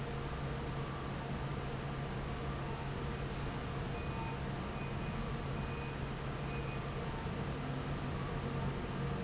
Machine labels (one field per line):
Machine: fan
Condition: normal